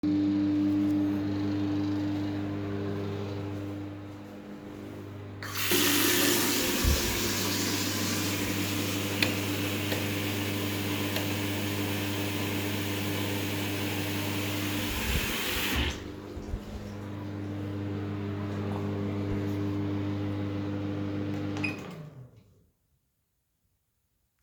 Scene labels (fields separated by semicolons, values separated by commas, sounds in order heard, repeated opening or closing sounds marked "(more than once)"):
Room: kitchen, bathroom; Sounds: microwave, running water, light switch